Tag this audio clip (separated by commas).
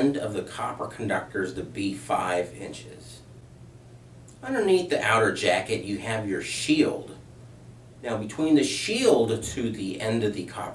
Speech